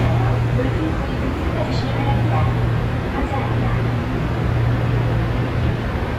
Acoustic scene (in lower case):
subway train